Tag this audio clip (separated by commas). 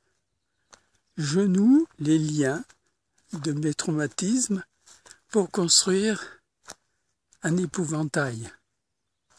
Speech